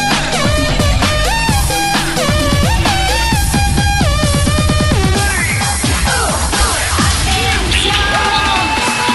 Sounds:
Electronic dance music, Music

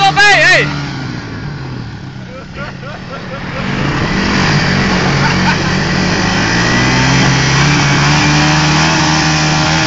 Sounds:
Vehicle, Speech

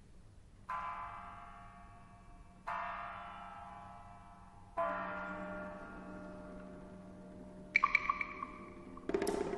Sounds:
Music

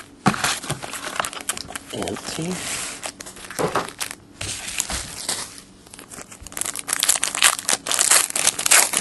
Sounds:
inside a small room, Speech

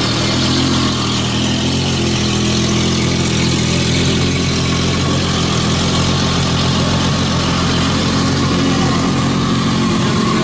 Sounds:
car engine starting

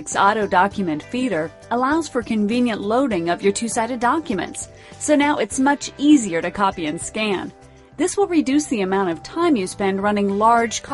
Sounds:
Speech, Music

